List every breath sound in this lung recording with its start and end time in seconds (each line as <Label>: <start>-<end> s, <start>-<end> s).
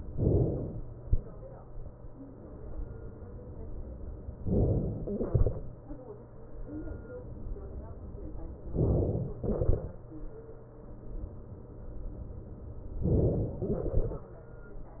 Inhalation: 0.17-1.09 s, 4.53-5.19 s, 8.79-9.43 s, 13.10-13.67 s
Exhalation: 5.20-6.46 s, 9.43-10.78 s, 13.67-15.00 s